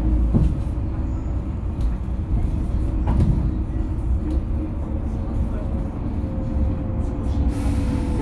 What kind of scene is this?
bus